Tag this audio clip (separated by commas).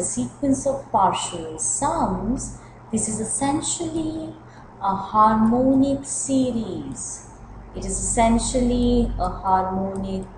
Speech